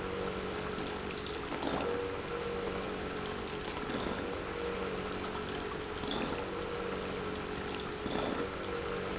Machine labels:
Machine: pump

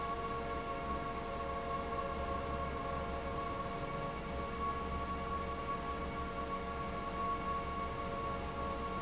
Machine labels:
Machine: fan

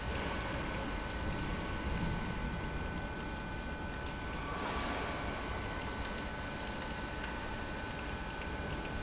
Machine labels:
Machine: pump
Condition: abnormal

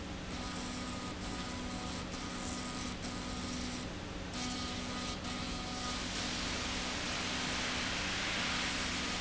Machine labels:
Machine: slide rail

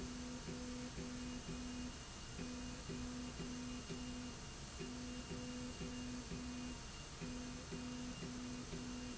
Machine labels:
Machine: slide rail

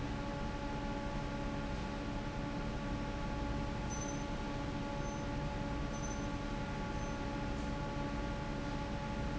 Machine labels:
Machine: fan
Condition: normal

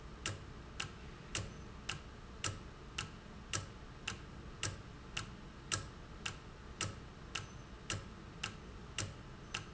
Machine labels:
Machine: valve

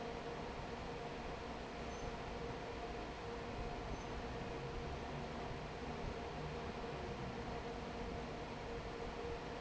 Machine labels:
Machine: fan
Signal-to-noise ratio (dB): 6 dB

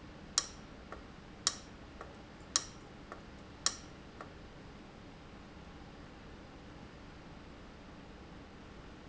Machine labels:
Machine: valve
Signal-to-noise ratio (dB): 6 dB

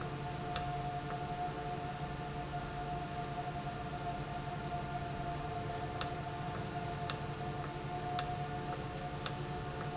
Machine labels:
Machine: valve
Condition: normal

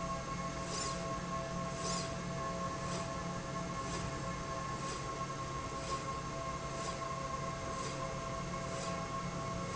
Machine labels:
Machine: slide rail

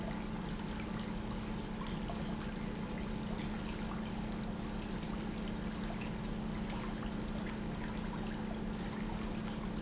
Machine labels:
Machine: pump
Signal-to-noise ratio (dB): -6 dB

